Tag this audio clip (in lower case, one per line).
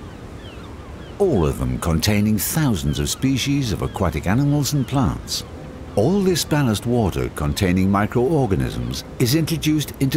speech